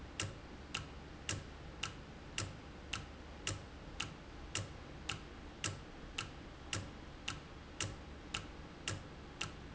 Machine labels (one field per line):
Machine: valve